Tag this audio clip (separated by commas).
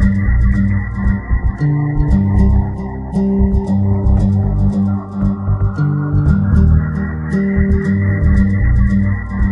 Music